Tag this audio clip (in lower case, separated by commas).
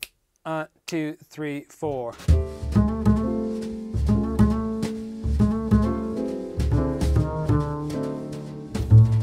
playing double bass